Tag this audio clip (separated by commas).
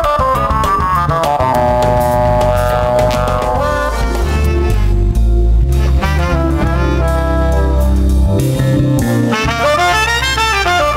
Saxophone, Brass instrument, Musical instrument, Music, playing saxophone, Wind instrument